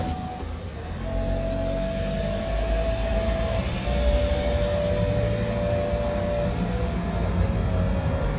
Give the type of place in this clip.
car